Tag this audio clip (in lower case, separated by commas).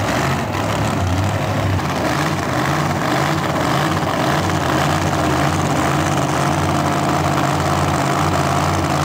engine, vroom, car, vehicle